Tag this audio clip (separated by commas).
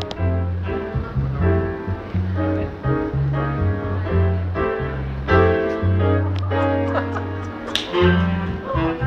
Speech, Music